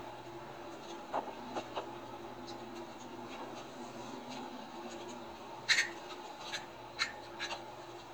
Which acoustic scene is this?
elevator